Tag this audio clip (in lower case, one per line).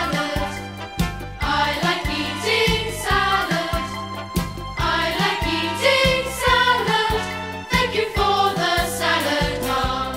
music